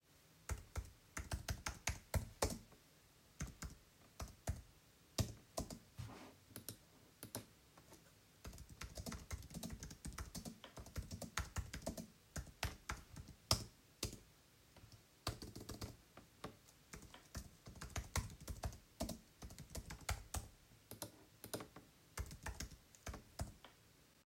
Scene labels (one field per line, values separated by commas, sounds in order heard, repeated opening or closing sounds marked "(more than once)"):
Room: office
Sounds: keyboard typing